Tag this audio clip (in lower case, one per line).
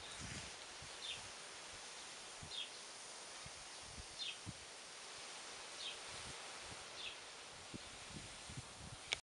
outside, rural or natural